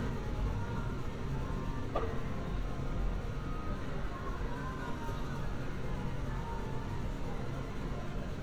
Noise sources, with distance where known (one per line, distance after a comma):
music from a fixed source, far